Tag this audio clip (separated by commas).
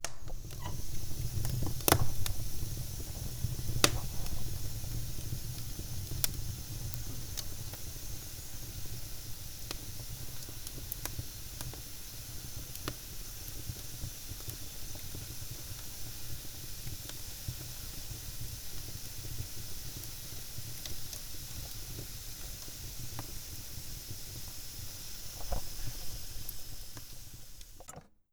Fire